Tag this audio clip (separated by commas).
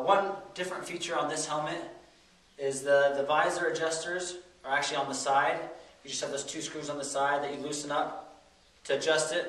Speech